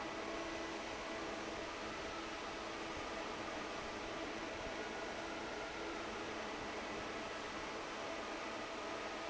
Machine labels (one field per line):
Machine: fan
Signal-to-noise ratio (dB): 6 dB